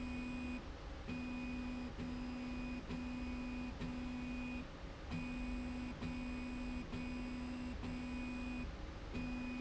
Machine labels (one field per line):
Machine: slide rail